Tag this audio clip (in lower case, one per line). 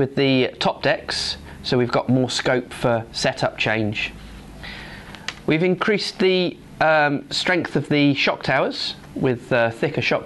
speech